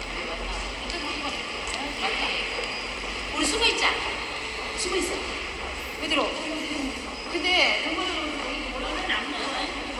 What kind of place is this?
subway station